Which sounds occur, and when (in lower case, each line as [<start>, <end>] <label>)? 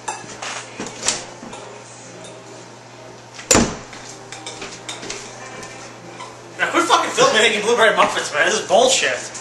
[0.00, 9.40] mechanisms
[0.04, 0.22] generic impact sounds
[0.36, 0.57] generic impact sounds
[0.78, 0.85] generic impact sounds
[1.03, 1.15] generic impact sounds
[1.46, 1.55] generic impact sounds
[2.15, 2.31] generic impact sounds
[3.27, 3.37] generic impact sounds
[3.48, 3.66] generic impact sounds
[3.85, 4.04] generic impact sounds
[4.28, 5.13] generic impact sounds
[6.13, 6.21] generic impact sounds
[6.56, 9.22] male speech
[7.94, 8.04] generic impact sounds
[8.64, 8.74] tick